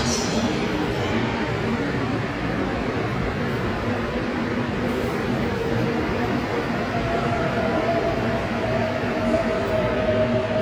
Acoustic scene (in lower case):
subway station